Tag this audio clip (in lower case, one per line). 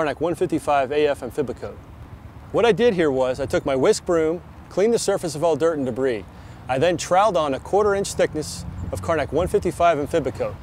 speech